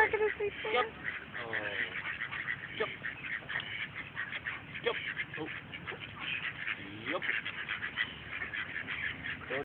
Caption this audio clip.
A woman speaks, ducks quack